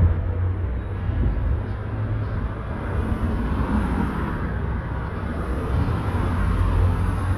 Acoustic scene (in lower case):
street